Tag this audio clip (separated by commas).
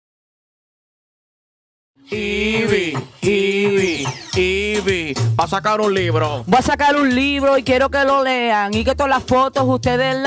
Music of Latin America, Music